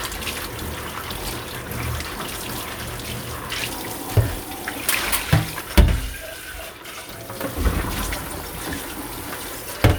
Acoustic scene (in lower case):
kitchen